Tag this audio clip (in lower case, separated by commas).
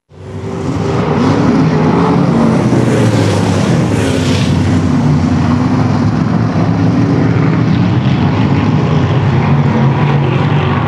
vehicle, car passing by, motor vehicle (road), car